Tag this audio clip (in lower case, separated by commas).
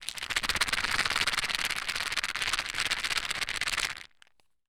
rattle